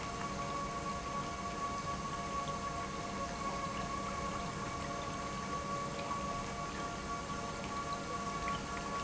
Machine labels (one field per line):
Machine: pump